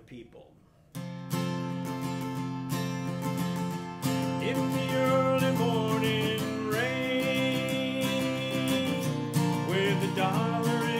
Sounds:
music, speech, guitar, musical instrument, plucked string instrument, strum

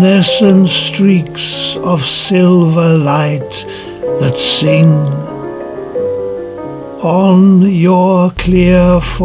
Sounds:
music

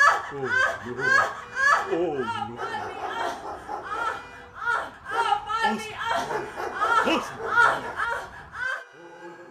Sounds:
speech

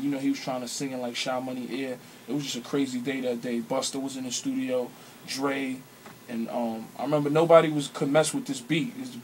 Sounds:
speech

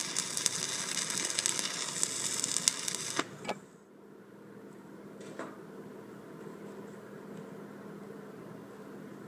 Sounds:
arc welding

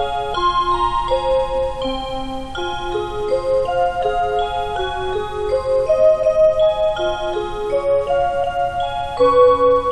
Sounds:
music, tick-tock

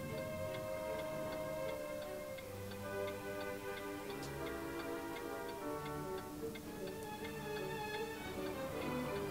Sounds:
tick-tock, music, tick

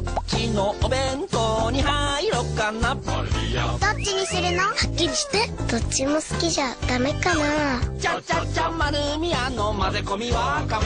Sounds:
music, speech

